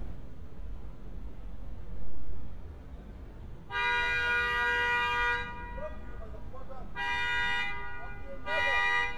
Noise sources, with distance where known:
car horn, near; person or small group shouting, near

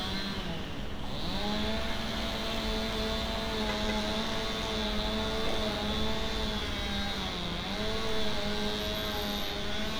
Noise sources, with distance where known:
rock drill; unidentified powered saw

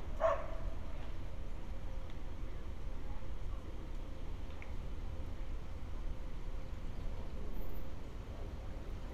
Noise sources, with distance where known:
dog barking or whining, near

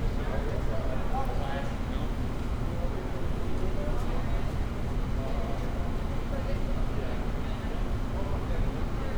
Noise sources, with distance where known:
person or small group talking, near

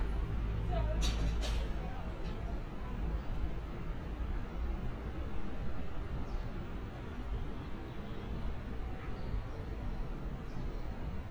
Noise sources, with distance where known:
non-machinery impact, near; unidentified human voice

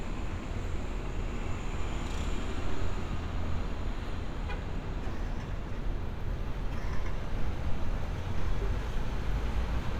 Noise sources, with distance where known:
medium-sounding engine, far; car horn, far; unidentified human voice, far

